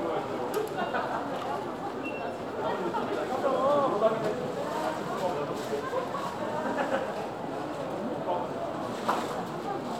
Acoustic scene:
crowded indoor space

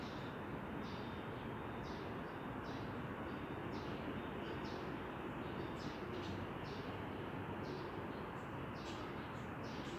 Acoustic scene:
residential area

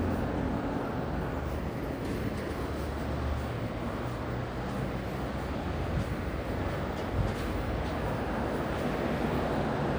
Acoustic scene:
residential area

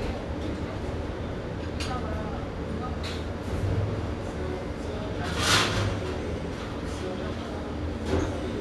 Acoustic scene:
restaurant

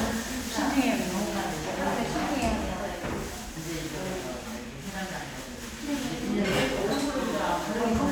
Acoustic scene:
crowded indoor space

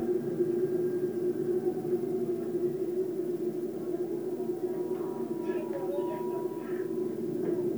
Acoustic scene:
subway train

